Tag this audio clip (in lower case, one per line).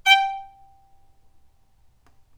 musical instrument
bowed string instrument
music